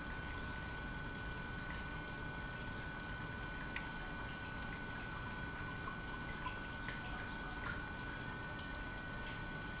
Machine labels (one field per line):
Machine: pump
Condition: normal